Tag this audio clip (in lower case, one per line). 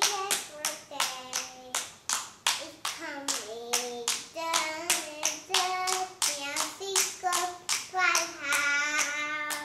tap